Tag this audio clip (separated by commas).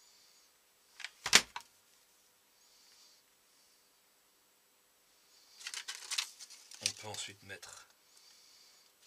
plastic bottle crushing